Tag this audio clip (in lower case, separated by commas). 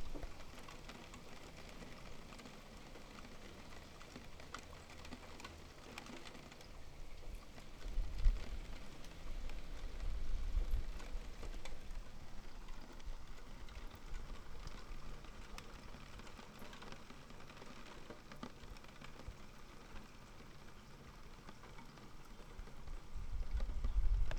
rain, water